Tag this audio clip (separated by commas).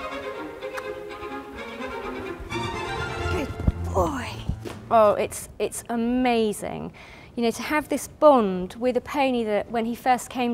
Music, Speech, Clip-clop